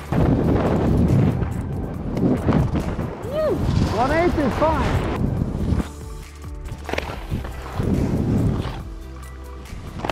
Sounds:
skiing

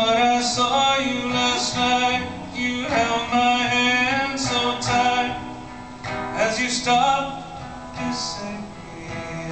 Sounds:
Music

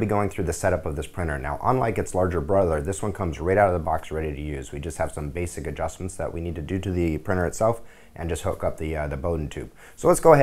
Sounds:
Speech

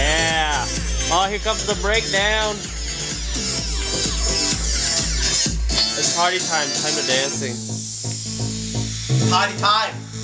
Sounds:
Music, Musical instrument, Speech

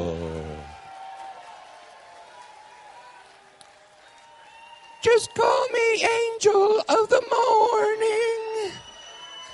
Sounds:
Speech

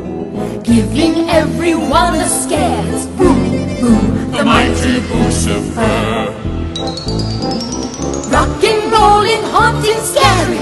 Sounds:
Music, Background music

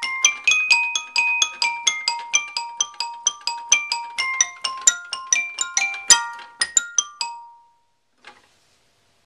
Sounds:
Music, Musical instrument, Piano, Keyboard (musical)

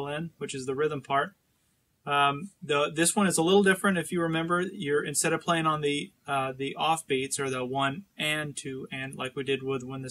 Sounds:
Speech

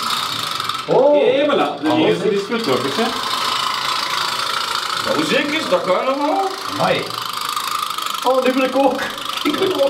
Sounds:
Speech

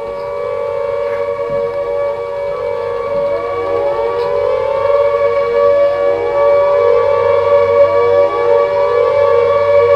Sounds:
Siren

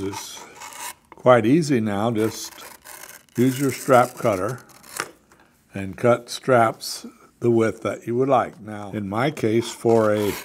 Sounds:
Tools, Wood, Speech

